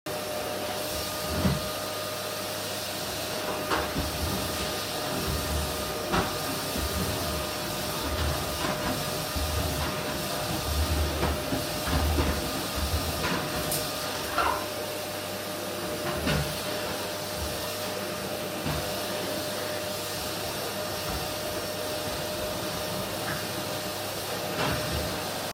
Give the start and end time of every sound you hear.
[0.00, 25.53] vacuum cleaner

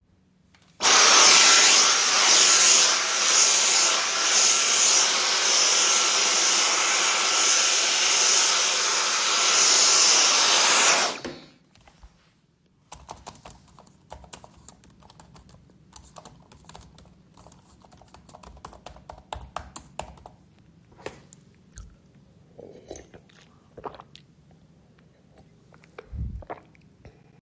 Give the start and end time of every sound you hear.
[0.76, 11.49] vacuum cleaner
[12.87, 20.43] keyboard typing

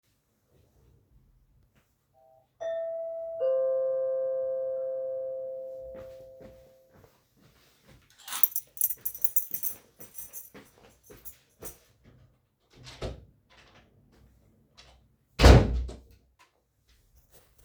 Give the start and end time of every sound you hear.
[2.55, 6.67] bell ringing
[5.92, 8.58] footsteps
[8.21, 11.93] keys
[9.39, 12.73] footsteps
[12.74, 16.33] door

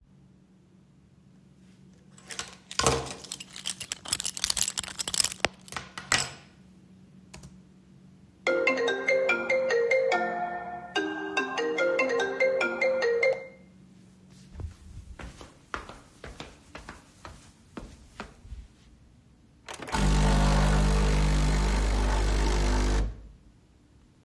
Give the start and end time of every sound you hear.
[2.14, 5.97] cutlery and dishes
[2.21, 6.58] keys
[7.23, 7.49] keyboard typing
[8.34, 13.54] phone ringing
[14.48, 18.84] microwave
[14.49, 18.77] footsteps
[19.61, 23.31] coffee machine

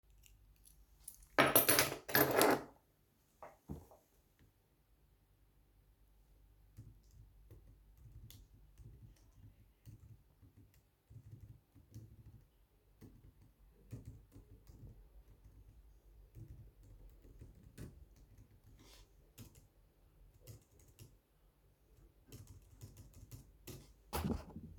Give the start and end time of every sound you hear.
[1.06, 2.70] keys
[8.21, 10.77] keyboard typing
[11.90, 13.11] keyboard typing
[13.85, 14.83] keyboard typing
[17.72, 17.89] keyboard typing
[19.34, 21.15] keyboard typing
[22.29, 23.93] keyboard typing

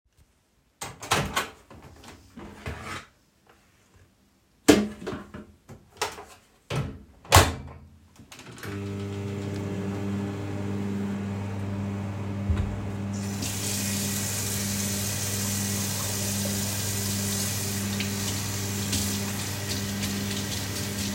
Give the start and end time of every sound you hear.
[0.81, 1.58] microwave
[4.68, 21.14] microwave
[13.14, 21.14] running water

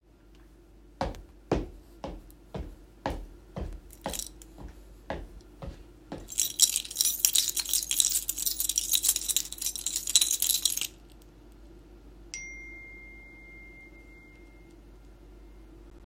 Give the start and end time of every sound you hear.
[0.98, 6.28] footsteps
[3.93, 4.43] keys
[6.26, 10.94] keys
[12.28, 14.78] phone ringing

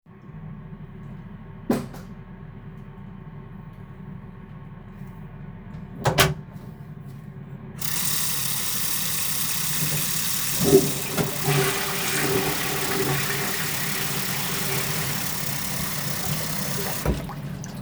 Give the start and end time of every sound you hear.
[1.60, 2.09] light switch
[5.94, 6.45] door
[7.75, 17.81] running water
[10.47, 15.63] toilet flushing

